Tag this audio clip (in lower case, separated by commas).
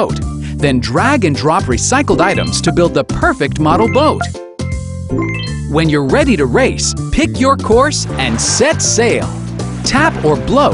speech, music, water vehicle, vehicle